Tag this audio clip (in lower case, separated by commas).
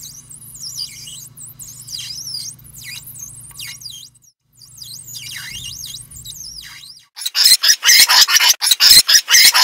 mouse squeaking